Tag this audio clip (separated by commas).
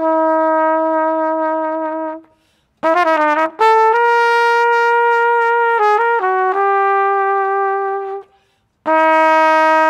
playing trumpet, Brass instrument, Trumpet